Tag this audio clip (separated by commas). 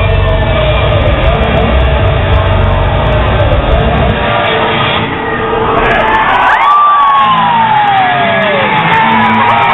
Crowd, Music